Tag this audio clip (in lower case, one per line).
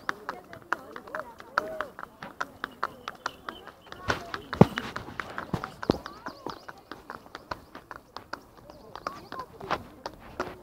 speech
horse
animal
clip-clop
horse clip-clop